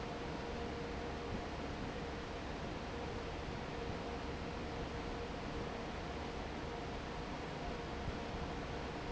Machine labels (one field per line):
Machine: fan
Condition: normal